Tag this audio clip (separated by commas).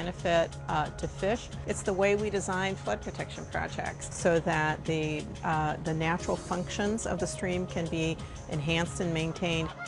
Speech, Music